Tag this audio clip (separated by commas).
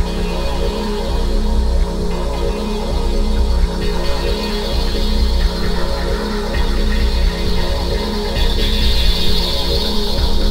Music